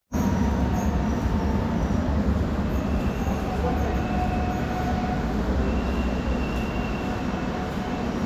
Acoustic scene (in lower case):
subway station